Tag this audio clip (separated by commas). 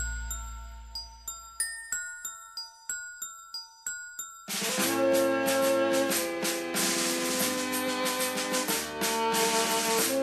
Music